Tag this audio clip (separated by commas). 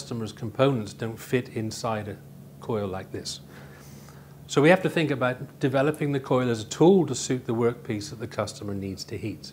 Speech